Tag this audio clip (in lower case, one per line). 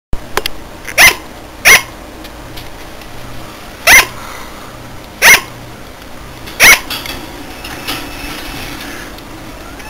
bark
domestic animals
animal